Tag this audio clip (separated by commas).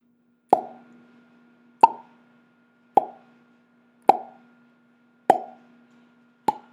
Explosion